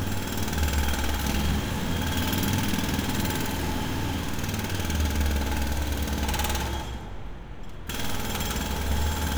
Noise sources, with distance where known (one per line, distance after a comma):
unidentified impact machinery